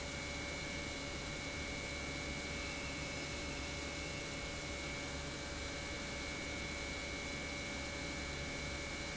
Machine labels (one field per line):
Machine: pump